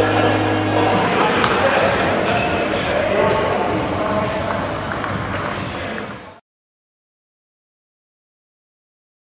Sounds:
Speech

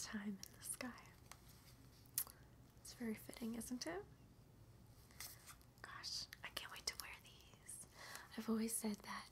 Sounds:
Whispering, people whispering

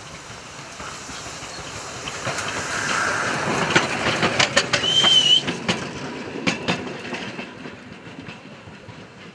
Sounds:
Heavy engine (low frequency)

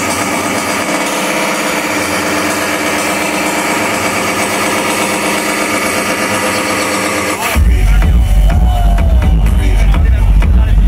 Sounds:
Speech, Music

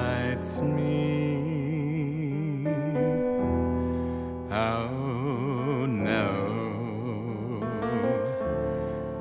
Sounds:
Music

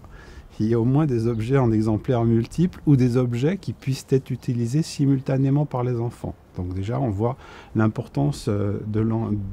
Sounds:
Speech

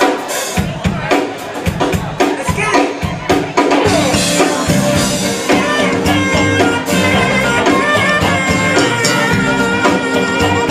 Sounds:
Music, Background music, Disco, Speech

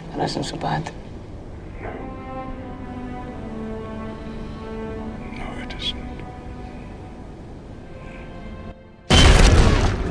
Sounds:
Music, Speech

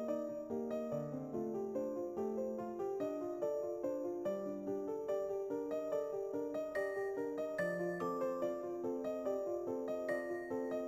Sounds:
Music

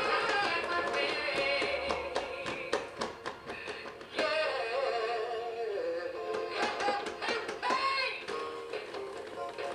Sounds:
Male singing, Music

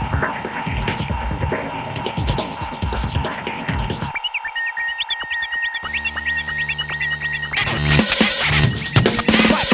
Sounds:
Music

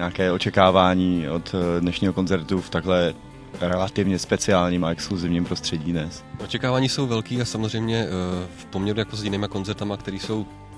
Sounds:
Music, Speech

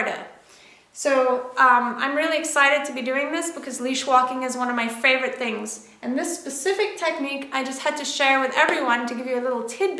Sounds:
Speech

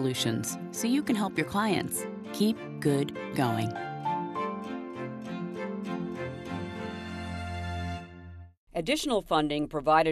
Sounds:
Speech

